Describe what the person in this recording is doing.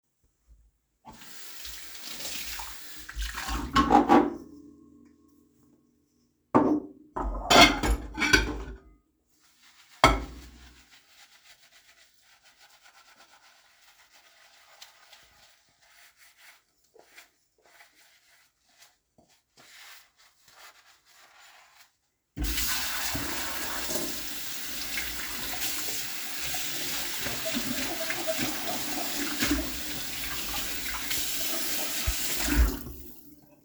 I started washing dishes at the sink. First I rinsed one dish, then I cleaned the next dish with soap. After scrubbing it, I rinsed it under running water.